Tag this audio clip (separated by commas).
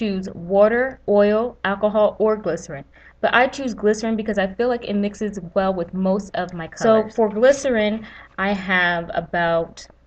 Speech